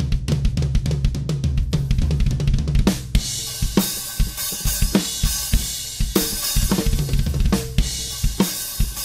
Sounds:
music

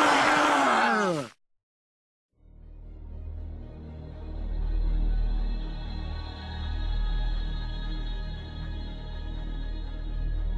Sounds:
music

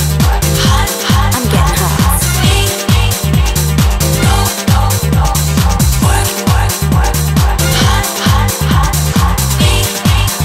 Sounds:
music
speech

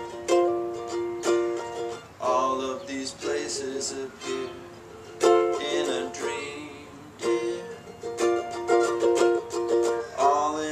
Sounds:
ukulele
music
outside, rural or natural
musical instrument

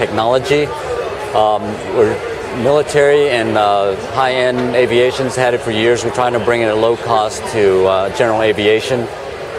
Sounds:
speech

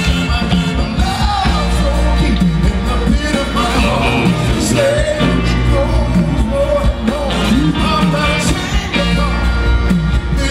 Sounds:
music

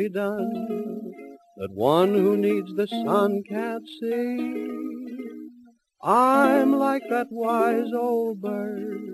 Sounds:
music

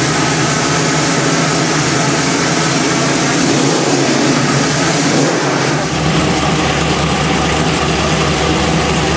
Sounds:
vehicle

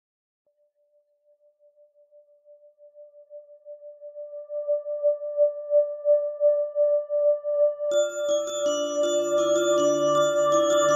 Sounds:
music

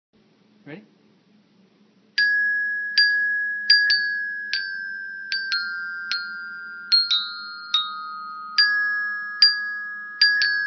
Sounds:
marimba
musical instrument
speech
music

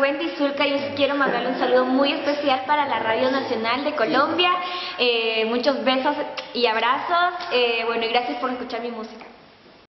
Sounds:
speech

